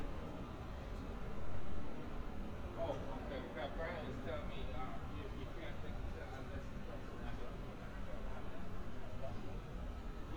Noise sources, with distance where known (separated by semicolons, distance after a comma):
person or small group talking, near